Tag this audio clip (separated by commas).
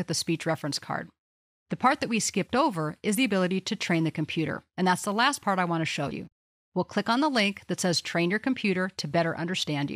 Speech